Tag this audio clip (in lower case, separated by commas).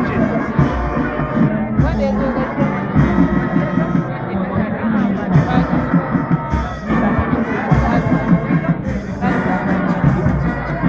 speech, music